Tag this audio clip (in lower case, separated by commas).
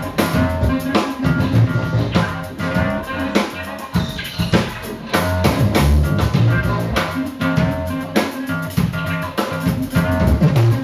soundtrack music, dance music, music